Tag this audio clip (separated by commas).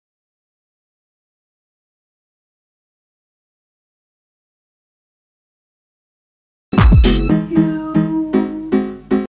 Music, Jingle (music)